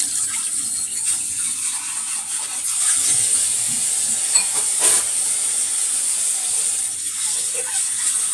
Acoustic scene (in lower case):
kitchen